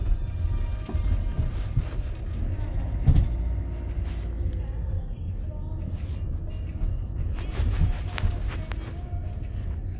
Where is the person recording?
in a car